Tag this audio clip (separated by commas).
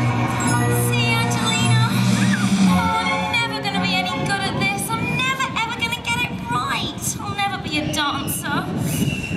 Speech, Music